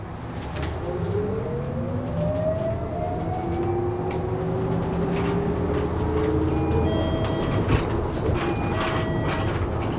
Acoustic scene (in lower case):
bus